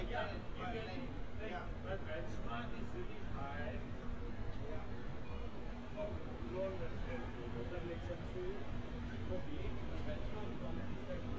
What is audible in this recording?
background noise